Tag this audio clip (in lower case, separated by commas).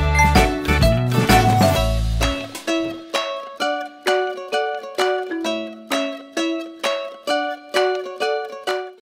music